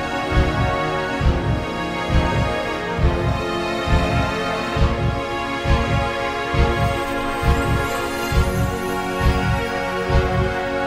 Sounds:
Heart sounds

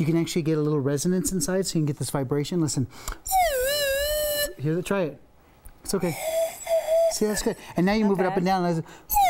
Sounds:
Speech

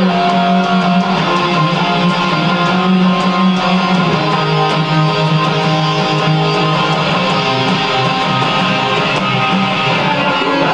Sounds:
Electric guitar, Strum, Plucked string instrument, Acoustic guitar, Musical instrument, Guitar, Music

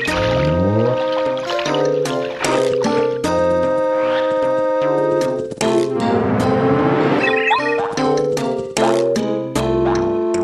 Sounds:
Music

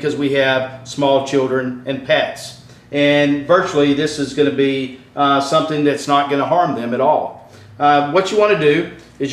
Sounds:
Speech

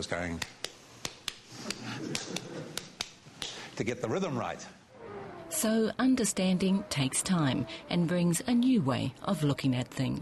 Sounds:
outside, urban or man-made, Speech

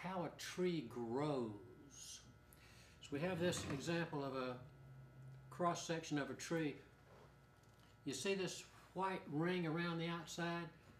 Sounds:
Speech

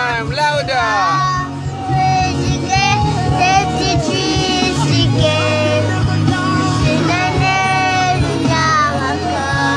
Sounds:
Music, Child singing, Speech, Male singing

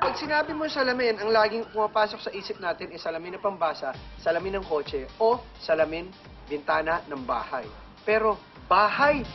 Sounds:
Speech, Music

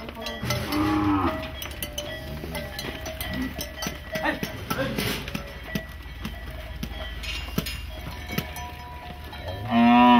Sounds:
bovinae cowbell

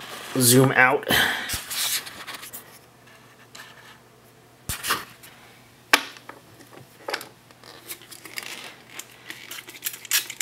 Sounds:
Speech

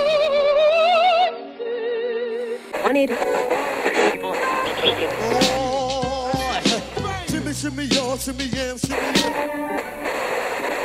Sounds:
Music

